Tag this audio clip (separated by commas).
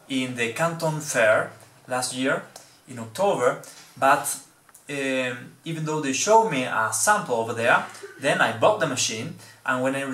Speech